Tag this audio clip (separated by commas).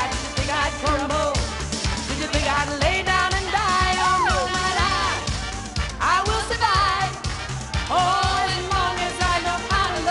Music